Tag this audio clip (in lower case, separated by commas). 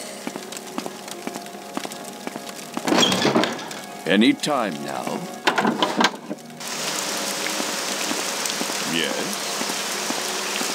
raindrop, speech, music